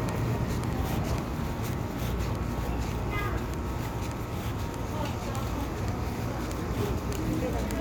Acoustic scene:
residential area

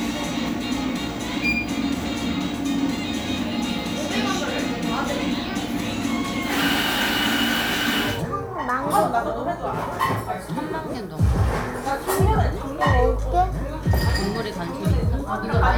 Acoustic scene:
cafe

